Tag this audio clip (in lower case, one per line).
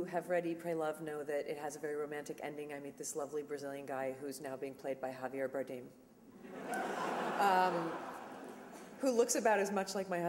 woman speaking
speech
narration